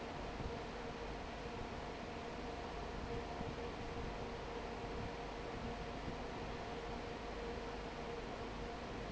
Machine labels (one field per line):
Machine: fan